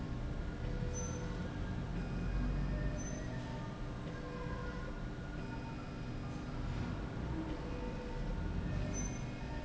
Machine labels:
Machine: slide rail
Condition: normal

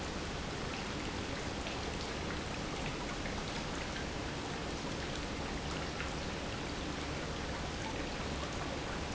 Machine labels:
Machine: pump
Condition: normal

